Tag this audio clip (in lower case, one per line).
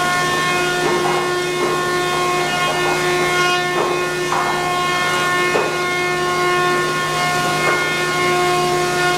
planing timber